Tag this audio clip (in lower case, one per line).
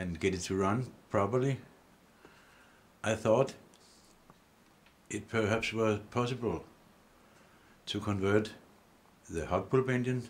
speech